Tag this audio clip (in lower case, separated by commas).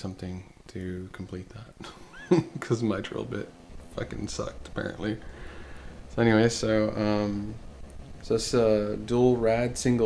speech